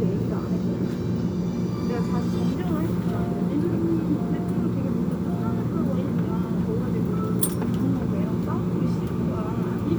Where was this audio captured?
on a subway train